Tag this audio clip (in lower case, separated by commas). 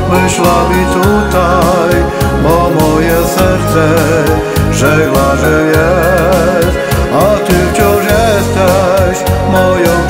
christian music, music